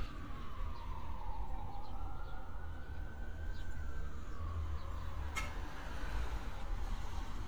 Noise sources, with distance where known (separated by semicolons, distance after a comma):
siren, far